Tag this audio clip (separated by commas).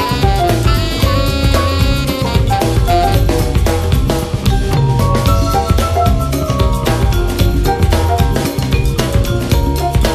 Music